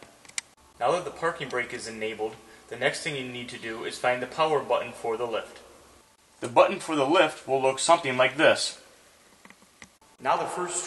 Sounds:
Speech

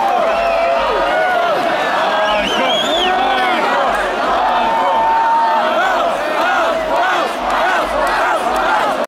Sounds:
Speech

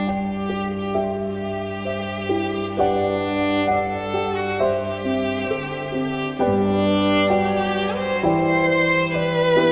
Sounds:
Music, Violin, Musical instrument

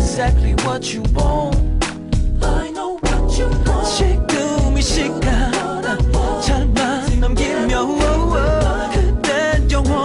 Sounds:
Music, Music of Asia, Singing

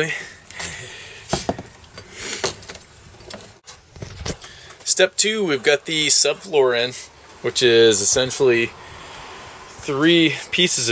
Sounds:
Speech

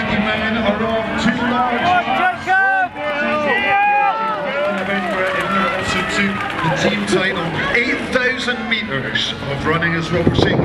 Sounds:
Speech, Run, outside, urban or man-made

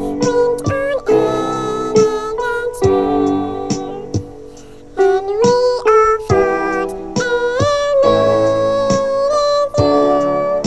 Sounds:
Music, Video game music

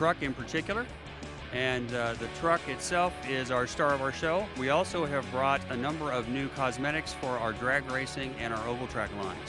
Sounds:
Music, Speech

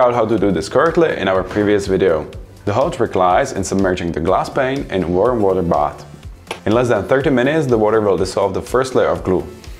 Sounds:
Music, Speech

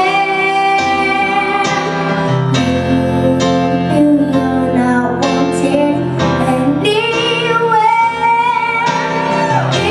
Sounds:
Male singing, Music, Child singing

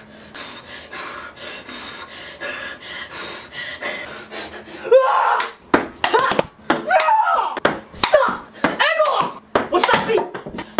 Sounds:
Speech

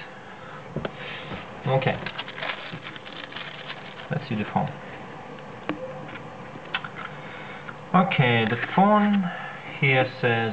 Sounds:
Speech

